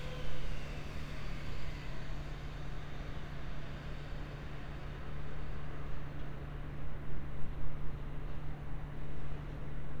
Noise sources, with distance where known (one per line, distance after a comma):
medium-sounding engine, far